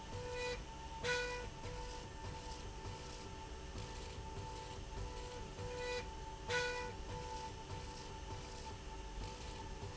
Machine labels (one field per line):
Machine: slide rail